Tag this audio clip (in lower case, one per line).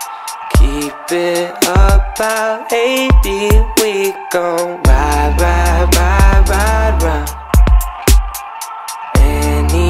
music